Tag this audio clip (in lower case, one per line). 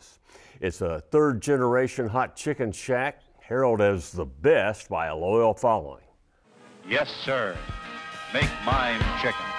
speech
music